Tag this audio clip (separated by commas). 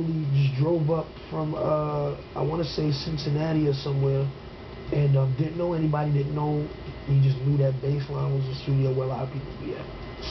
Speech